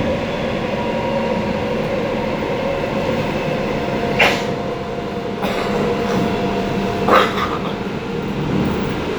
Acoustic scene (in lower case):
subway train